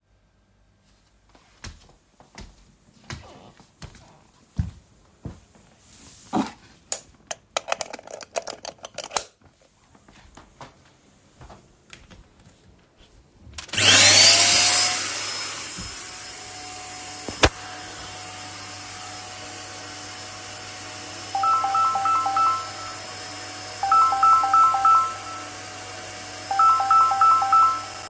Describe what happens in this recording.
I walked towards my bedroom. I plugged the cable in the power outlet and turned the vacuum claner on. After few seconds my phone started ringing simultaneously with the vacuum.